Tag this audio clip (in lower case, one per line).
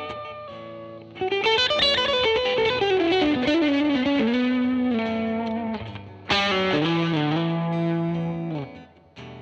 electric guitar
music
guitar
musical instrument
plucked string instrument